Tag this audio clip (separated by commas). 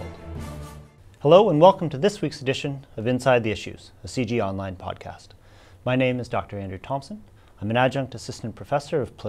Speech, Music